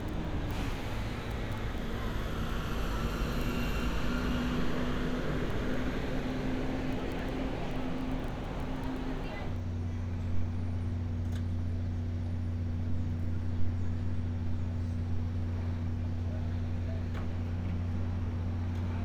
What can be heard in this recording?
medium-sounding engine, person or small group talking